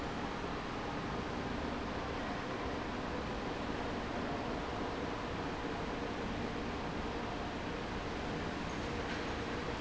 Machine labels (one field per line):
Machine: fan